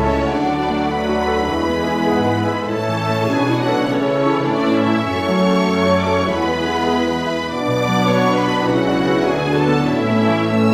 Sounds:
music

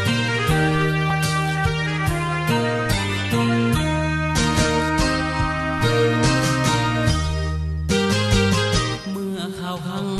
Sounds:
music
tender music

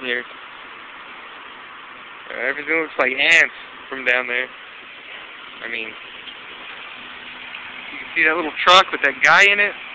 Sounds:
speech

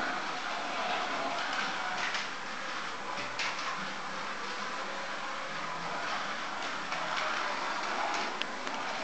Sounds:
car
vehicle

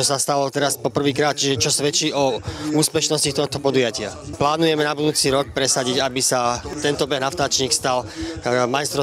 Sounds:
outside, urban or man-made
speech

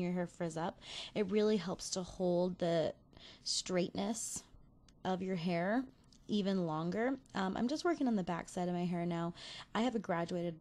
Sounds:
monologue

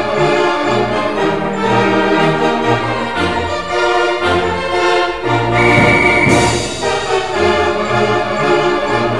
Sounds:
music

